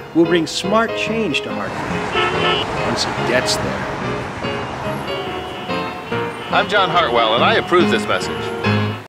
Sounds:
Music, Speech

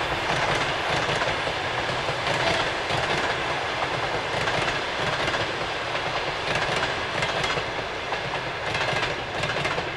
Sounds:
train whistling

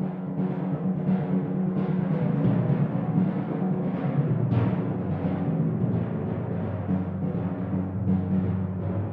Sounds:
Musical instrument, Music, Timpani, Drum

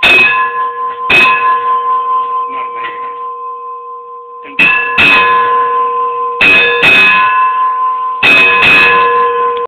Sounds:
Speech

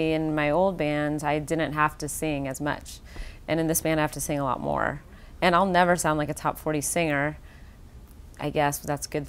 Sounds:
Speech, inside a small room

